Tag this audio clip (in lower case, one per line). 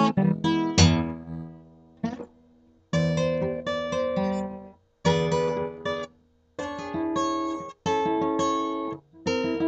music
inside a small room
acoustic guitar
plucked string instrument
musical instrument
guitar